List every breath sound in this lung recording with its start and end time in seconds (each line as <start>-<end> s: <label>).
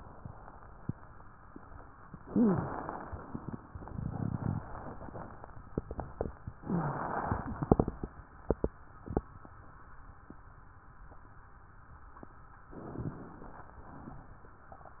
2.20-2.75 s: wheeze
2.20-3.23 s: inhalation
6.58-7.14 s: wheeze
6.58-7.63 s: inhalation
12.71-13.76 s: inhalation
13.76-14.53 s: exhalation